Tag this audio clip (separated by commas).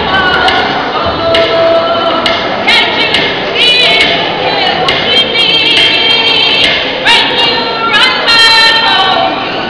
Music